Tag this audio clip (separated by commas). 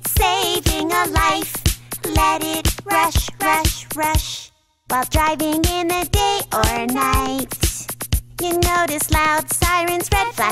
Music for children, Music, Child speech